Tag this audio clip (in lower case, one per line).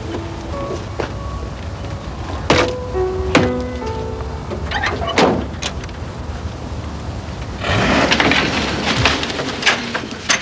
music